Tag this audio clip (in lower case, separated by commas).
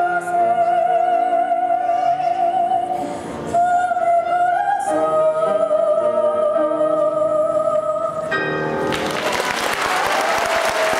applause, music, singing